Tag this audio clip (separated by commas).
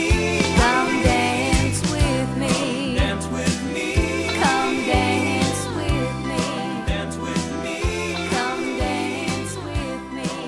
Music, Happy music